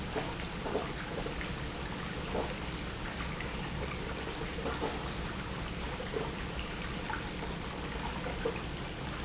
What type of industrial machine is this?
pump